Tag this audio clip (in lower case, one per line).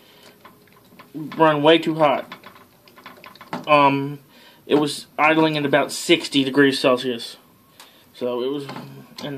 speech